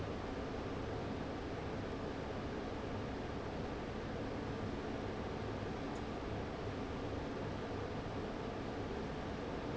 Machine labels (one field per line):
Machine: fan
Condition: abnormal